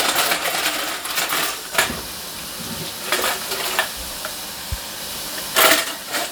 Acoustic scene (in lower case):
kitchen